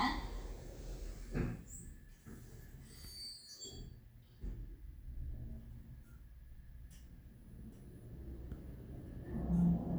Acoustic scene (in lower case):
elevator